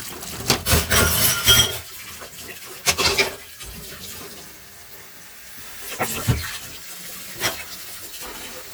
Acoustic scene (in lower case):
kitchen